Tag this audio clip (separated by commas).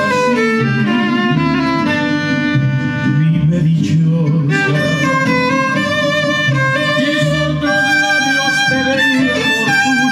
Music, Musical instrument, Violin